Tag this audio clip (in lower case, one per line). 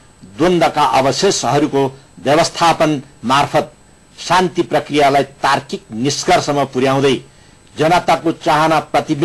male speech
narration
speech